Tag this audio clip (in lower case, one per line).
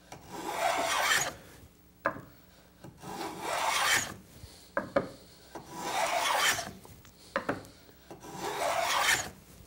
filing (rasp)
wood
rub